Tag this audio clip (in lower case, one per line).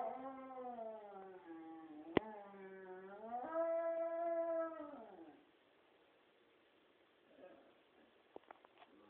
animal
pets